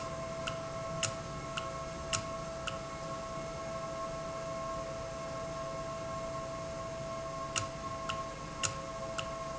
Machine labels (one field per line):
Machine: valve